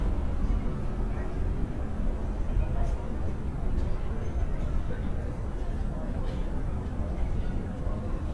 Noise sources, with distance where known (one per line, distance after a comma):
engine of unclear size
person or small group talking, far